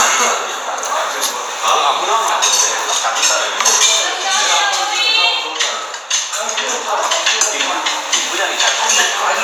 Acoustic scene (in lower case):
restaurant